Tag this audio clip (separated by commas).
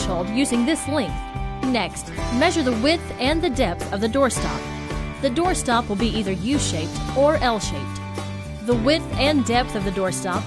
Speech, Music